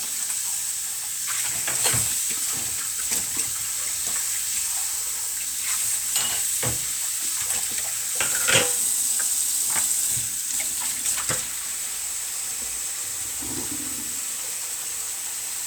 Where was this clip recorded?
in a kitchen